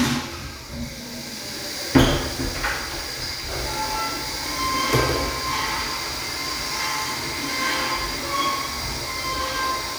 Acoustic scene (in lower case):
restroom